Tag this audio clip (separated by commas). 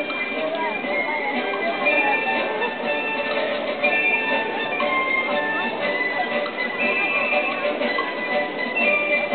Tick-tock, Music, Speech